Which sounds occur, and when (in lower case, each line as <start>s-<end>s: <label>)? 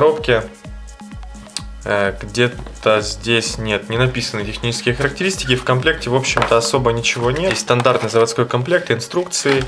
0.0s-0.4s: male speech
0.0s-9.6s: music
1.5s-1.6s: generic impact sounds
1.8s-2.5s: male speech
2.5s-2.7s: generic impact sounds
2.8s-9.6s: male speech
6.4s-6.6s: generic impact sounds
7.7s-8.0s: generic impact sounds